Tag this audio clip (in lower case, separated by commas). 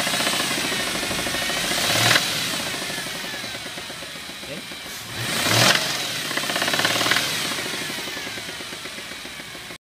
medium engine (mid frequency), idling, speech, vehicle, engine, revving